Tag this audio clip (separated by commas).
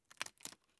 Wood, Crushing